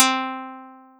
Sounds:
Guitar, Musical instrument, Plucked string instrument, Music

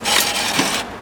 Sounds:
Vehicle, underground, Engine, Rail transport

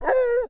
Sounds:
Animal, pets, Dog

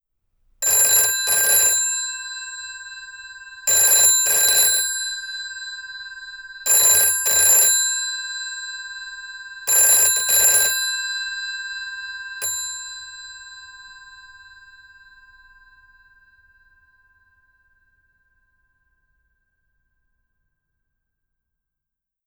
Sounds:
Alarm, Telephone

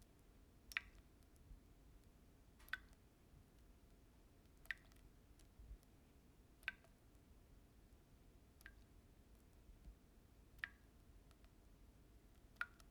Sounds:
home sounds, Drip, faucet, Liquid

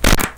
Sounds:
Fart

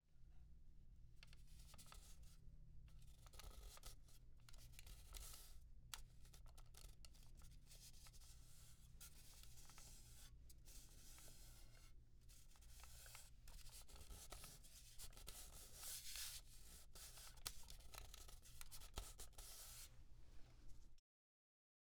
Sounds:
Hands

